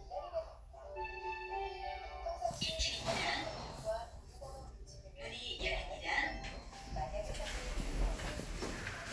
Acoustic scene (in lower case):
elevator